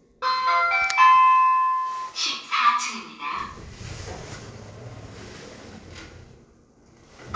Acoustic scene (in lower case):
elevator